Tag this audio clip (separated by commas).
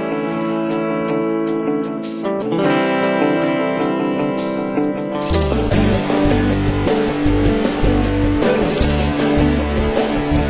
Music